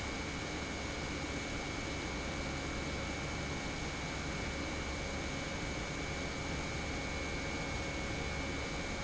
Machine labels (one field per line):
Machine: pump